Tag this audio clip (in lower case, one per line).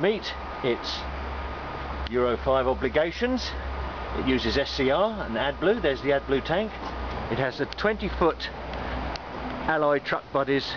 speech
truck
vehicle